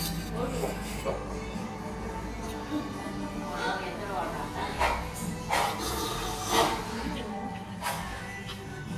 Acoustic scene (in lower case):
restaurant